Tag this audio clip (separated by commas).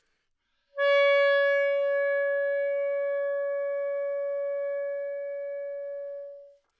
woodwind instrument, Music, Musical instrument